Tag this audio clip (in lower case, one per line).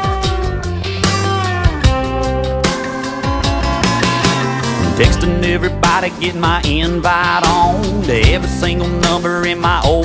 rhythm and blues
music